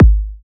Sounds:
Drum, Music, Percussion, Musical instrument, Bass drum

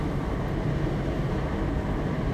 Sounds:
Wind

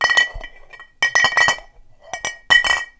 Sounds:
Glass, Chink

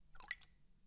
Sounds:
Water, Rain, Raindrop

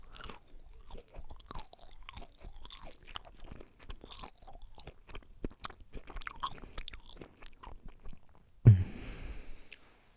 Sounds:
Chewing

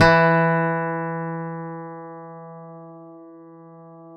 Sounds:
Musical instrument, Music, Plucked string instrument, Guitar, Acoustic guitar

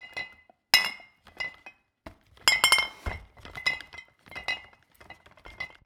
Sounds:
Glass

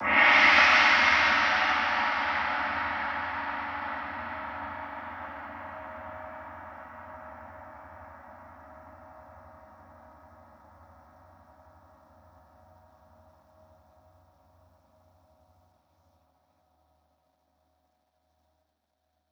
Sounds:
Gong, Musical instrument, Music, Percussion

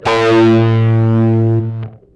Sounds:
Electric guitar, Musical instrument, Guitar, Plucked string instrument, Bass guitar, Music

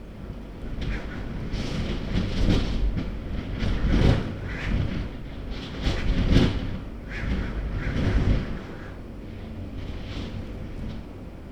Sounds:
Wind

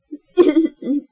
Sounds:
Human voice, Laughter

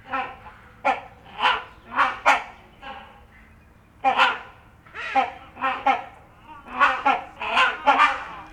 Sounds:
Bird, Wild animals, Animal, Bird vocalization

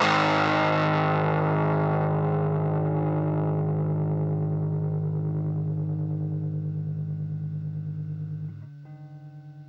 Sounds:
Guitar, Plucked string instrument, Musical instrument, Music

